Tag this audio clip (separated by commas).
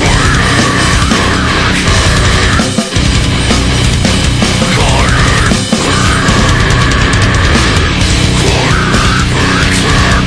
Music